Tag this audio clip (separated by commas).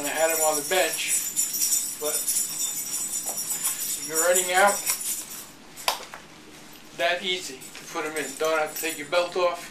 inside a small room, Speech